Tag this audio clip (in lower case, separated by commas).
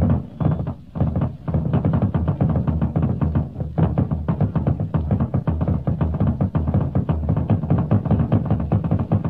percussion, bass drum, drum, playing bass drum